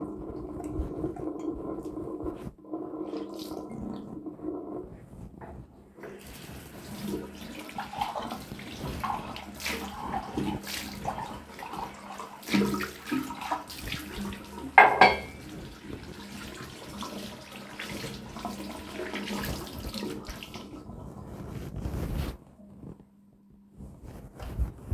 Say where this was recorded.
dorm room